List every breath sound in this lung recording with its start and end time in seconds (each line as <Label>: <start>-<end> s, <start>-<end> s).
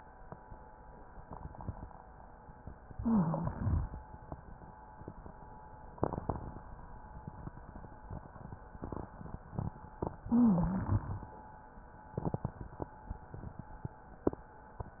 Inhalation: 2.89-3.96 s, 10.22-11.29 s
Wheeze: 2.95-3.58 s, 10.28-11.07 s